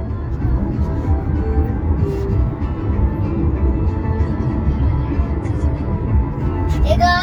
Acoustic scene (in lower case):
car